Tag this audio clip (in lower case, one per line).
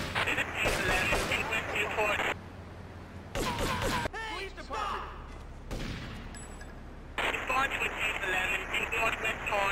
police radio chatter